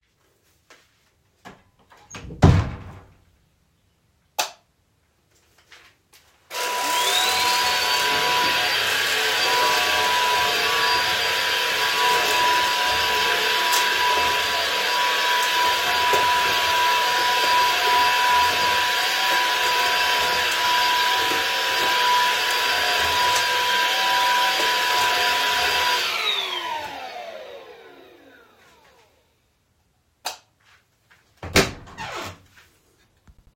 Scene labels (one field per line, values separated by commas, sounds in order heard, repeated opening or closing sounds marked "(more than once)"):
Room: kitchen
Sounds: footsteps, door (more than once), light switch, vacuum cleaner